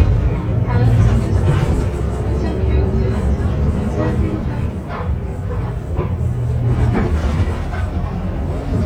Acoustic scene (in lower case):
bus